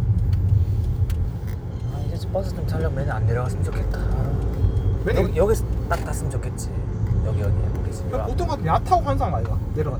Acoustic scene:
car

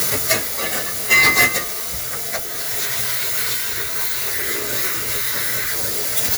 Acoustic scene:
kitchen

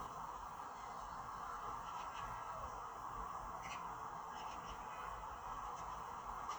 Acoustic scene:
park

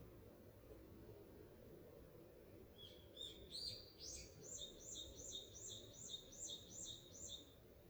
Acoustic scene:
park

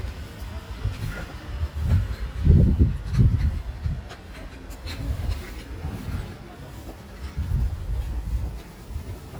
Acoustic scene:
residential area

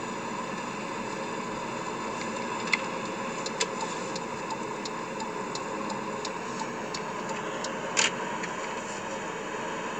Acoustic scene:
car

